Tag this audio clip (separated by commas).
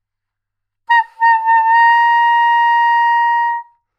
Music, Musical instrument, woodwind instrument